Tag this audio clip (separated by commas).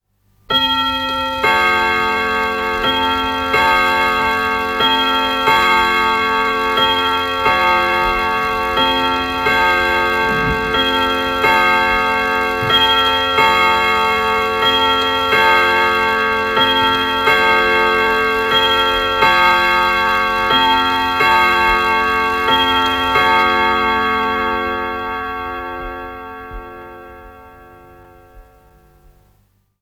Mechanisms, Clock